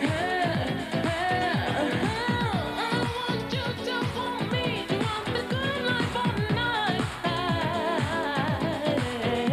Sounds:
Electronic music, Techno, Music

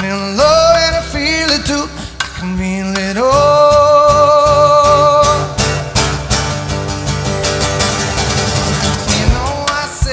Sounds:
Guitar, Singing

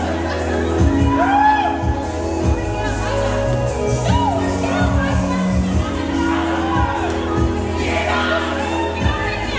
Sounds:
Speech, Music

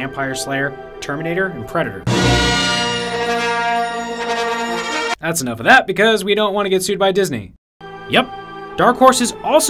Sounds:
Music, Speech

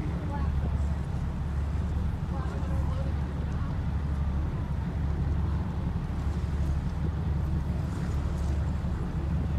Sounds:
sea lion barking

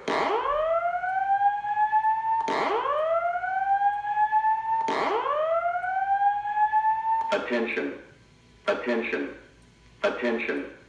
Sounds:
Speech

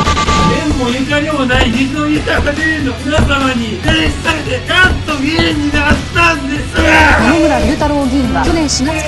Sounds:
Music, Speech

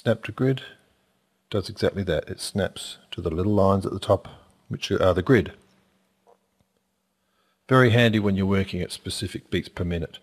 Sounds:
Speech

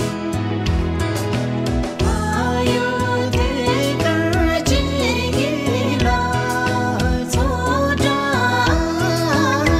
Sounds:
Music, Traditional music

